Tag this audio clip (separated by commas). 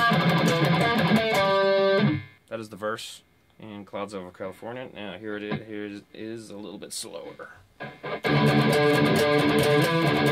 Plucked string instrument, Guitar, Acoustic guitar, Musical instrument, Speech, Music, Strum